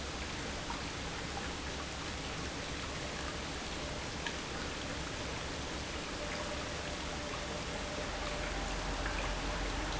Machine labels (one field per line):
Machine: pump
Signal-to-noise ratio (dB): -6 dB